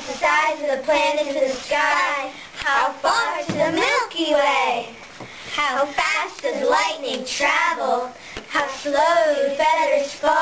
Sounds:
inside a small room

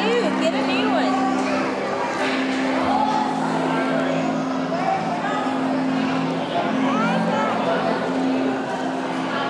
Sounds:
Speech

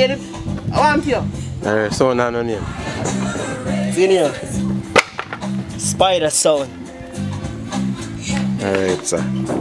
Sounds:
Speech, Music

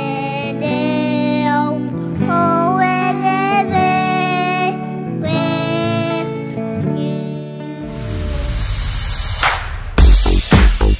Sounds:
child singing

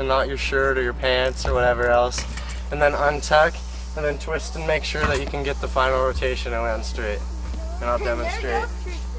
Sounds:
Speech, Vehicle

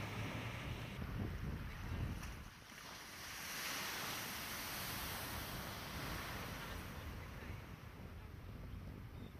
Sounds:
Speech

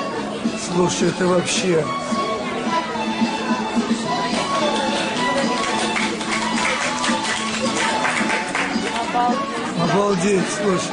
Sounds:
Speech, Music

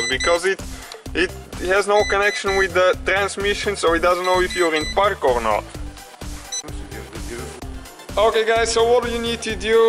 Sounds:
reversing beeps

